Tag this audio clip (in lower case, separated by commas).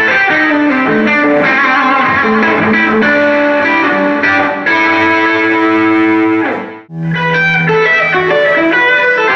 music